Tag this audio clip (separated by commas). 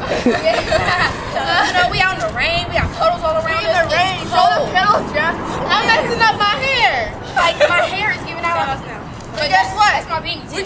Speech